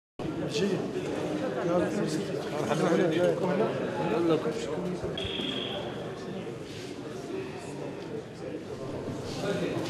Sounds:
speech

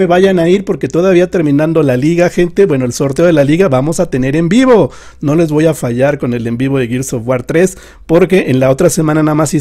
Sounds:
speech

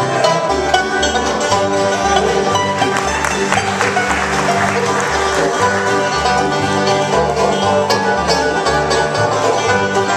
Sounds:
bowed string instrument
music
banjo
country
plucked string instrument
fiddle
playing banjo
musical instrument
bluegrass

